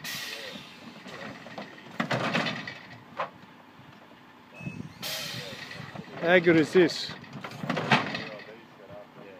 Some metal machine noises are followed by a man speaking